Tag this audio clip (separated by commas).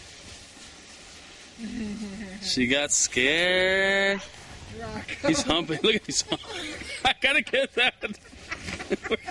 Speech